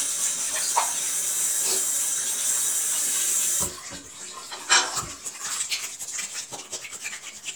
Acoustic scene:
restroom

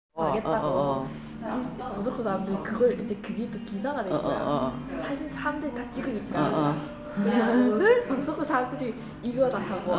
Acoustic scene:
crowded indoor space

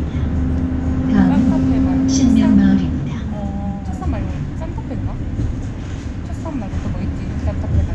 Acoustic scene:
bus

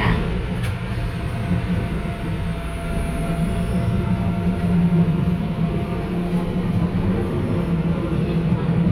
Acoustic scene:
subway train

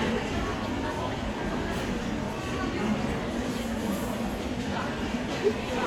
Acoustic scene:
crowded indoor space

